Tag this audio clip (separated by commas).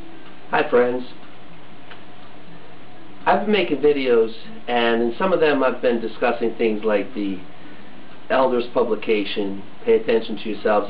Speech